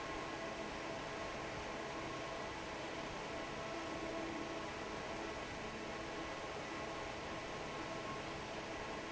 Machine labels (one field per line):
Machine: fan